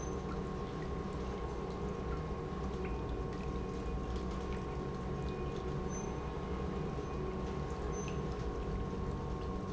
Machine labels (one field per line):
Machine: pump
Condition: normal